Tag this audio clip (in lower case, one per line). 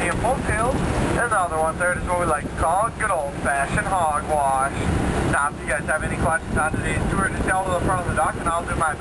speech